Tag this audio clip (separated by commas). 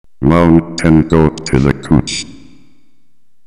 Speech